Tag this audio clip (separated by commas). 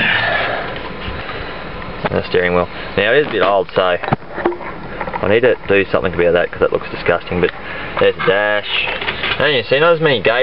Speech